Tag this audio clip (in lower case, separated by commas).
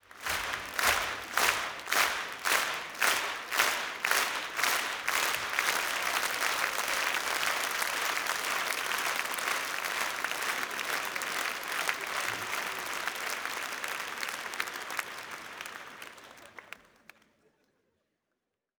human group actions, applause